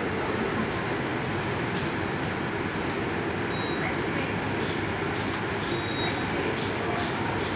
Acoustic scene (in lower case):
subway station